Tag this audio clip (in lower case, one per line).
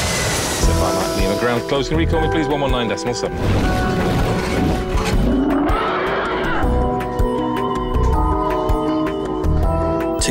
music
speech